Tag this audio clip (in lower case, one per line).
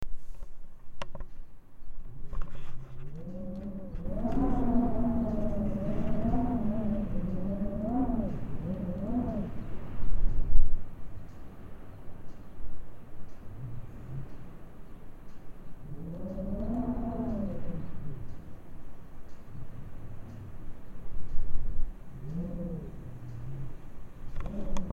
wind